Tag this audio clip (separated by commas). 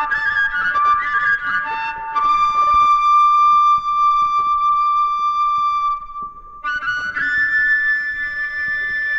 Music, Flute